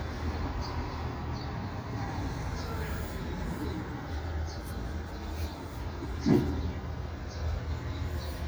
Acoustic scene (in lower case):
residential area